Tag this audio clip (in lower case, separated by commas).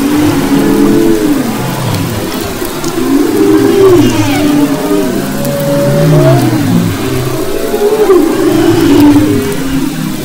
animal, whale vocalization